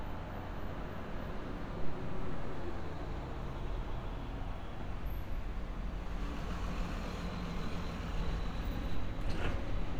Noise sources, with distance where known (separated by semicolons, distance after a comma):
medium-sounding engine; large-sounding engine, far